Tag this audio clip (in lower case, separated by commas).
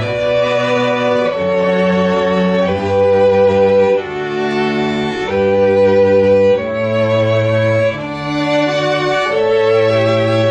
music, sound effect